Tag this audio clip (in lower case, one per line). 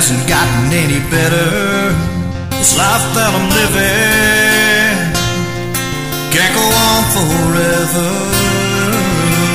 music